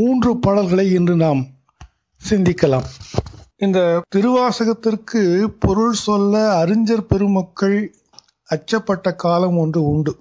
A man is speaking